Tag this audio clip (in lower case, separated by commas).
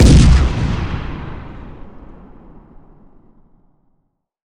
boom, explosion